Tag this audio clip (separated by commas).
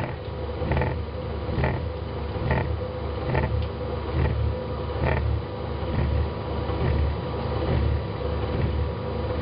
Microwave oven